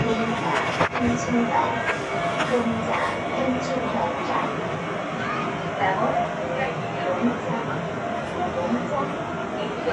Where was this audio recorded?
on a subway train